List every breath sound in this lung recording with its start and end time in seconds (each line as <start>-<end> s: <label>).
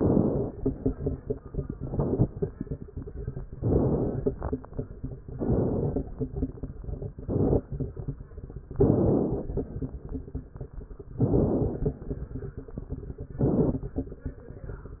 0.00-0.51 s: inhalation
1.76-2.28 s: inhalation
1.76-2.28 s: crackles
3.57-4.29 s: inhalation
3.57-4.29 s: crackles
5.35-6.07 s: inhalation
5.35-6.07 s: crackles
7.21-7.67 s: inhalation
7.21-7.67 s: crackles
8.75-9.54 s: inhalation
8.75-9.54 s: crackles
11.20-11.99 s: inhalation
11.20-11.99 s: crackles
13.43-14.00 s: inhalation
13.43-14.00 s: crackles